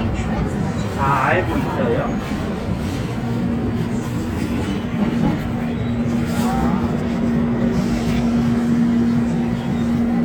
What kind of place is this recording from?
subway train